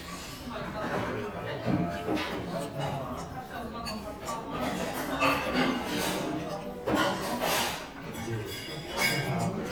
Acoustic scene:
crowded indoor space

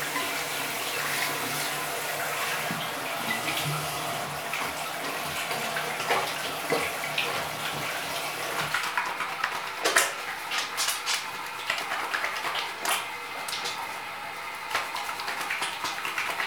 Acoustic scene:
restroom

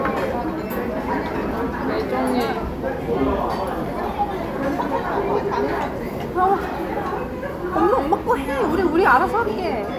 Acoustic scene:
crowded indoor space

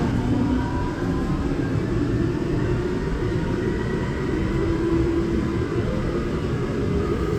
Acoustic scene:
subway train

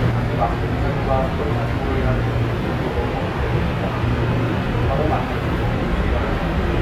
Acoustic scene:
subway train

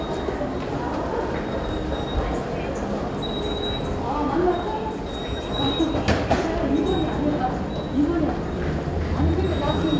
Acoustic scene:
subway station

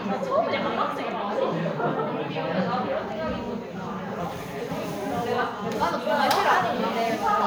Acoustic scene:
crowded indoor space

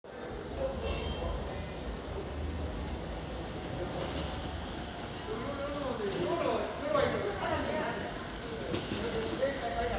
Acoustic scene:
subway station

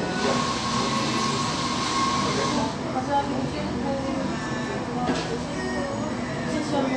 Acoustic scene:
cafe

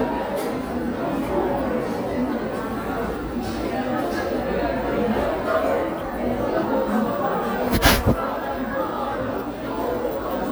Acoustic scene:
crowded indoor space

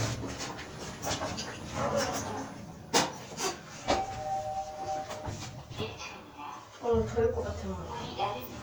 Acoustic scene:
elevator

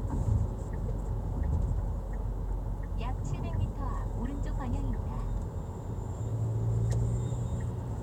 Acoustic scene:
car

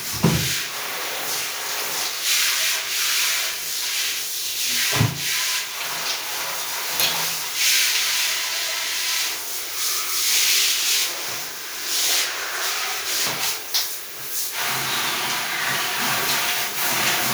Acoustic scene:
restroom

